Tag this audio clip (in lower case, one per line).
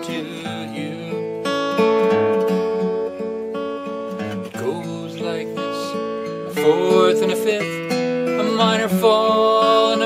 guitar
strum
music
musical instrument
plucked string instrument